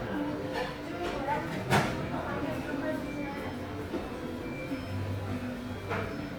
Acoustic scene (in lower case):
crowded indoor space